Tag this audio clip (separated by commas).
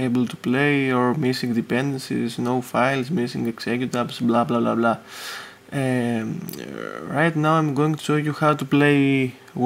Speech